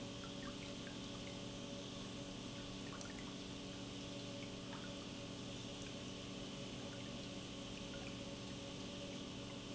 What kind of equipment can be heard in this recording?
pump